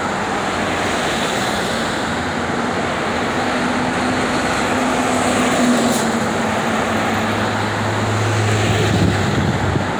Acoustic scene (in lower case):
street